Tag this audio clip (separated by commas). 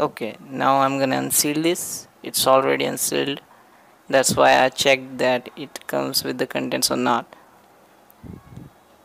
Speech